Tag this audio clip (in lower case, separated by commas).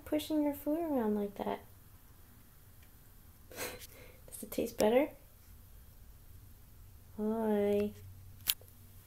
speech